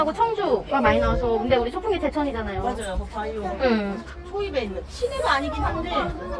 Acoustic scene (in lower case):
park